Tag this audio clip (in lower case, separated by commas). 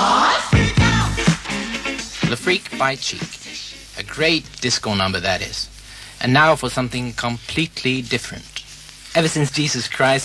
music, speech